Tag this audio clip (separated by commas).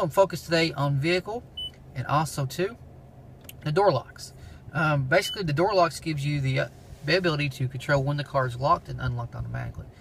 Speech